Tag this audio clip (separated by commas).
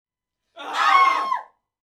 Human voice, Screaming